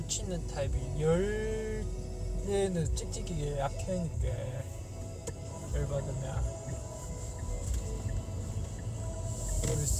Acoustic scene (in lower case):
car